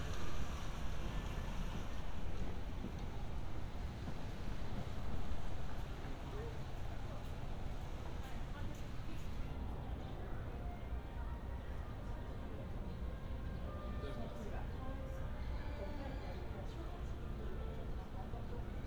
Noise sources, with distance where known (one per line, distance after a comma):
background noise